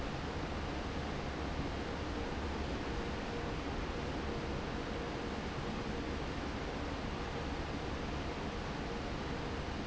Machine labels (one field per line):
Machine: fan